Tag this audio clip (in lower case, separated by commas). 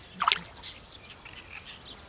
water, liquid, splatter